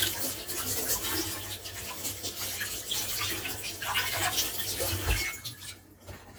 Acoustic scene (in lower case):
kitchen